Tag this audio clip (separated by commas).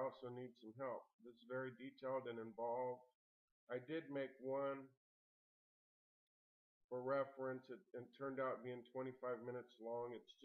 Speech